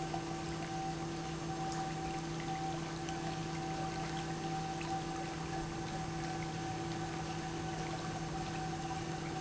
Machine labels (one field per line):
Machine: pump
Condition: normal